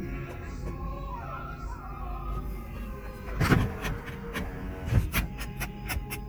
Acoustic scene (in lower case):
car